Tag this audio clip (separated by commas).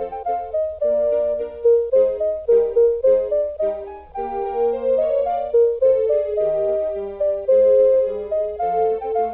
Music